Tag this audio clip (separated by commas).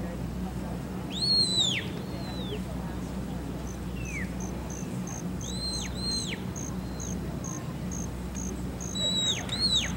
Insect, Cricket